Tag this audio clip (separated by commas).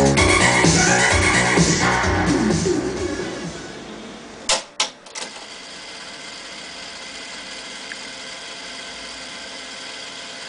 Music, inside a small room